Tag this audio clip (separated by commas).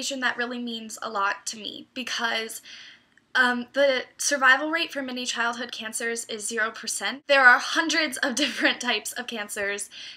Speech